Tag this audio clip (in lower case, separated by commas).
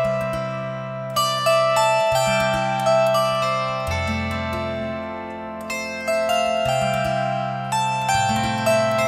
zither, pizzicato